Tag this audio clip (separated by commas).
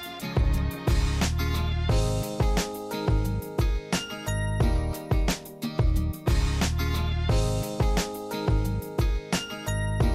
Music